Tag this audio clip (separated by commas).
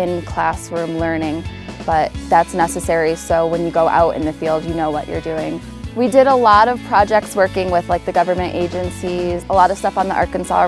Speech, Music